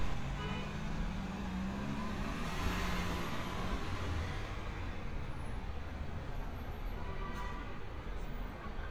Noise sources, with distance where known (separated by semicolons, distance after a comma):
medium-sounding engine; car horn, far